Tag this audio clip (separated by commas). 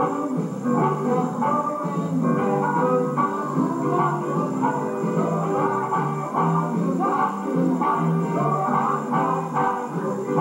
Music, Blues